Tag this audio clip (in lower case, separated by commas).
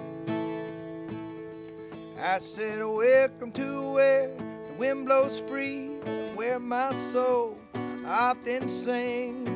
music